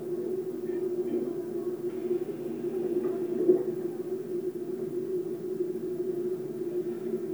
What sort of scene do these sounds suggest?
subway train